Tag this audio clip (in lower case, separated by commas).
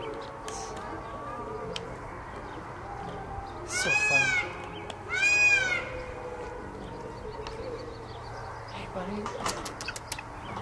animal, music, speech